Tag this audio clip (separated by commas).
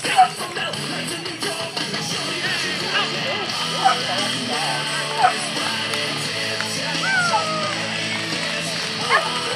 Bow-wow, Music, Yip, Speech